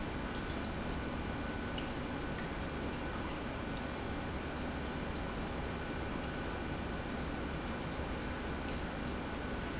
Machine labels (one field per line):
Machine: pump